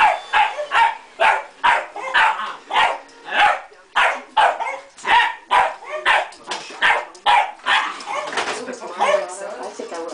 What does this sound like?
Dog constantly barking